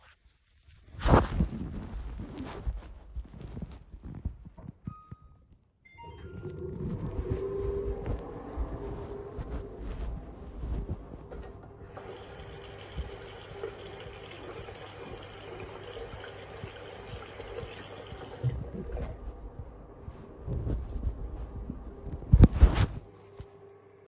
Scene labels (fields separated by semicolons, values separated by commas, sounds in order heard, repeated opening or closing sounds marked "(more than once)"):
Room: kitchen; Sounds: footsteps, microwave, running water